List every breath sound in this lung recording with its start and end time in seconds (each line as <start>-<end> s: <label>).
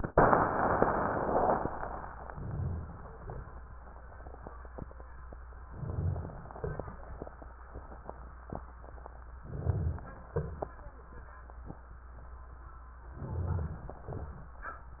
2.31-3.17 s: inhalation
2.31-3.17 s: rhonchi
3.16-3.77 s: exhalation
3.63-5.67 s: crackles
5.68-6.53 s: inhalation
5.68-6.53 s: rhonchi
6.55-7.58 s: exhalation
6.55-9.40 s: crackles
9.40-10.32 s: inhalation
9.40-10.32 s: rhonchi
10.35-10.95 s: exhalation
13.15-14.08 s: inhalation
13.15-14.08 s: rhonchi